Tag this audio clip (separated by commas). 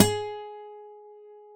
Plucked string instrument, Guitar, Music, Musical instrument, Acoustic guitar